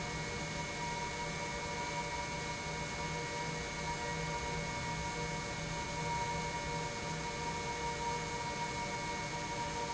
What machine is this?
pump